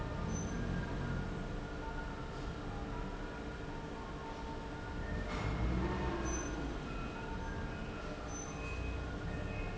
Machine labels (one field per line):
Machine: fan